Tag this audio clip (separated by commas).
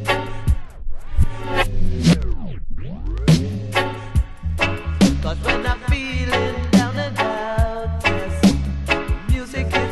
Music